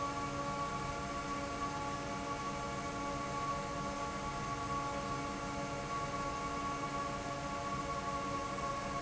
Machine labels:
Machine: fan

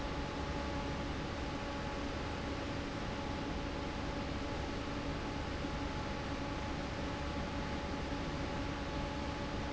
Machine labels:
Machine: fan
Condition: normal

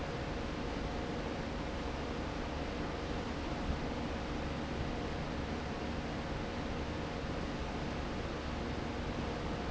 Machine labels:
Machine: fan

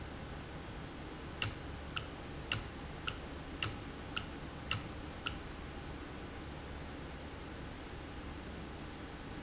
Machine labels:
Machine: valve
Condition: normal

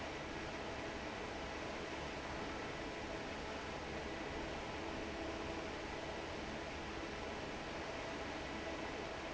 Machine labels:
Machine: fan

